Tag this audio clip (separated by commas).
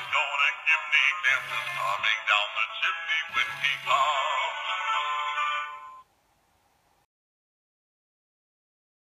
Male singing, Music